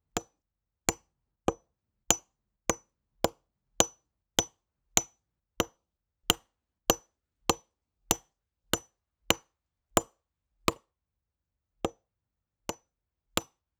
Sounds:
wood

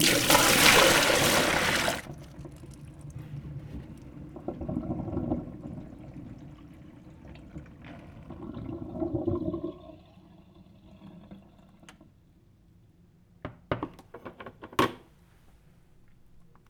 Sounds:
sink (filling or washing), home sounds

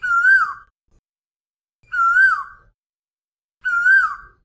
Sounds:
wild animals, animal, bird

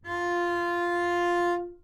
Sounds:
bowed string instrument, musical instrument, music

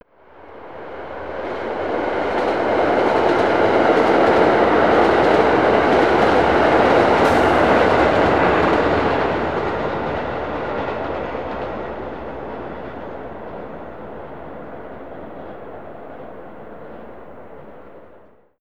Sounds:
rail transport, train, vehicle

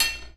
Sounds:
home sounds, silverware, dishes, pots and pans

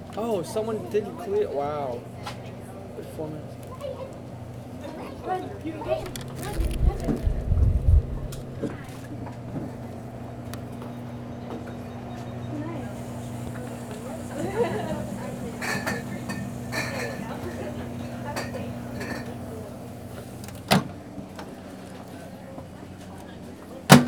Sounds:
domestic sounds, microwave oven

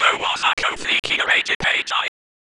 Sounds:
human voice, whispering

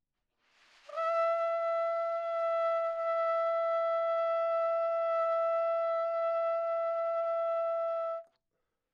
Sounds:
brass instrument, musical instrument, trumpet, music

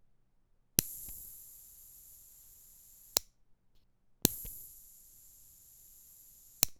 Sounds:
fire

